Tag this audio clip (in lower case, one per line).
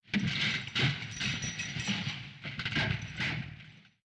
keys jangling
domestic sounds